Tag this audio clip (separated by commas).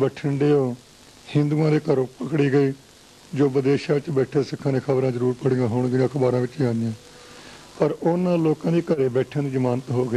man speaking, monologue, Speech